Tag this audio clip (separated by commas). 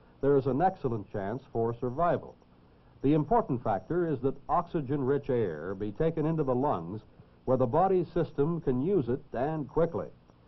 Speech